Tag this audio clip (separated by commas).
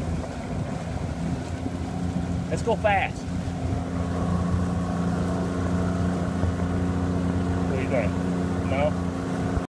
speedboat, Water vehicle, Speech